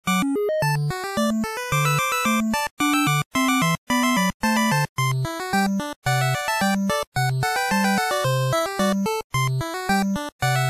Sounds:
soundtrack music, music

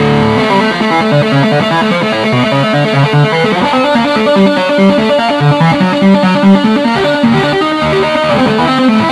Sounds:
tapping (guitar technique), music

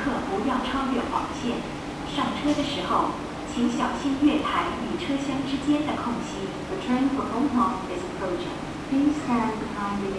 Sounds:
speech

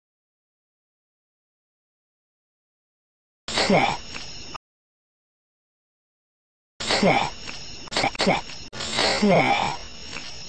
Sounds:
speech

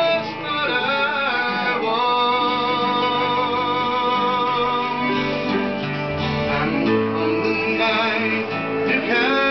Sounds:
male singing, music

